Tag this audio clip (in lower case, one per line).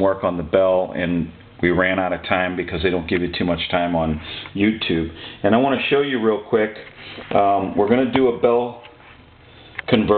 speech